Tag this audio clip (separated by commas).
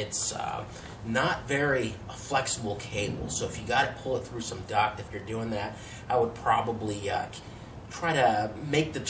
Speech